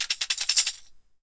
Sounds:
percussion, musical instrument, tambourine, music

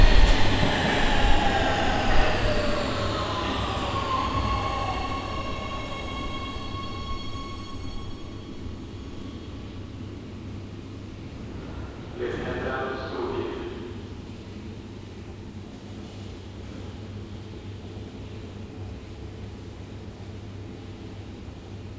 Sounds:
metro, vehicle, rail transport

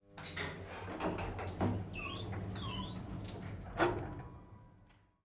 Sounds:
sliding door, home sounds, door

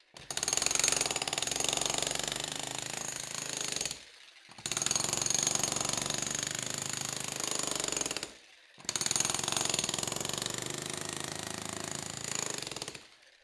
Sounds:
tools

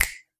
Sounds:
hands, finger snapping

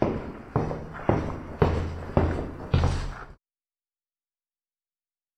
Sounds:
footsteps

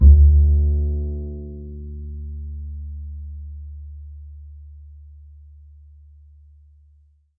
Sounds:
musical instrument, music, bowed string instrument

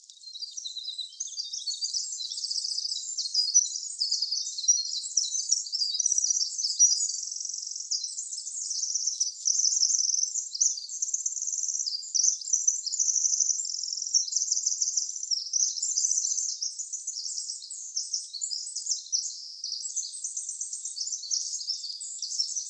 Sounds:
bird, bird vocalization, wild animals, animal

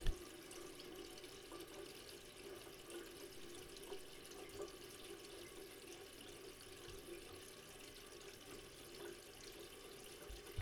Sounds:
domestic sounds, sink (filling or washing), water tap

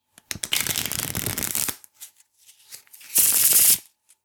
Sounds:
home sounds

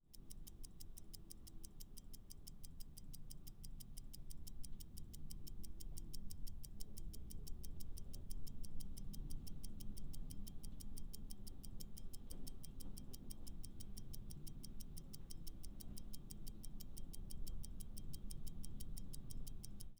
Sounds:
tick-tock, mechanisms, clock

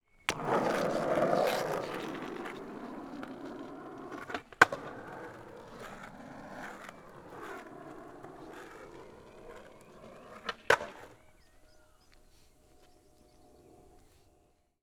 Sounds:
skateboard, vehicle

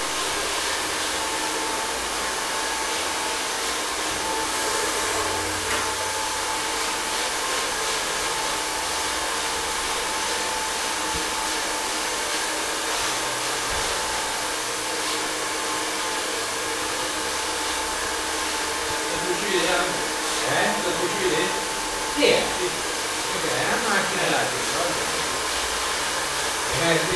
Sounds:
domestic sounds

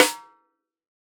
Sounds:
music, musical instrument, snare drum, drum, percussion

